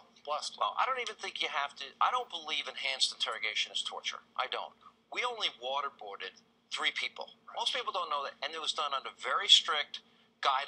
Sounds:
speech

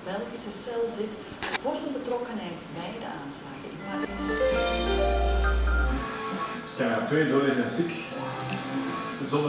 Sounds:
speech, music

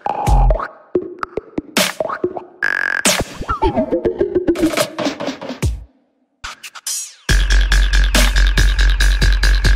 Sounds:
music, electronica

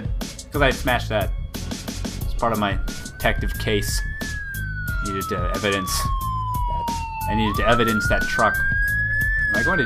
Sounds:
speech, music

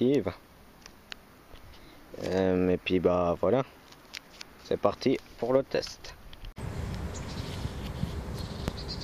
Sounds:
speech, firecracker

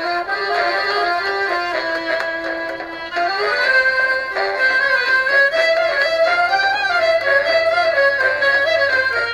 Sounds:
music

